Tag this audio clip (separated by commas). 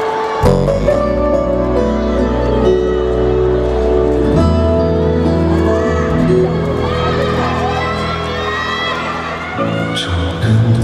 Music, Speech